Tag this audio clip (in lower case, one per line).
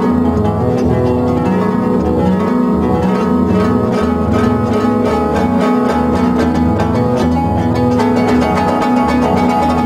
music
musical instrument
harp